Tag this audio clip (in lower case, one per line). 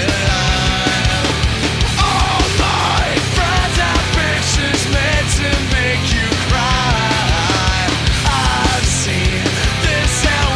music
angry music